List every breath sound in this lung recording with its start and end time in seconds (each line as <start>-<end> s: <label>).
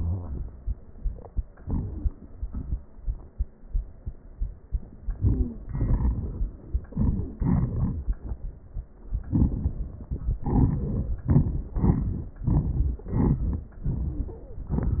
5.17-5.62 s: wheeze